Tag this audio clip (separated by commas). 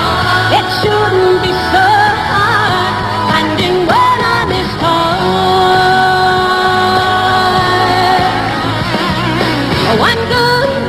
Music of Asia, Music